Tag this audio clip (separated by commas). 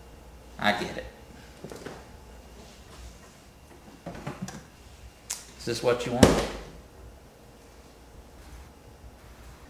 inside a small room, Speech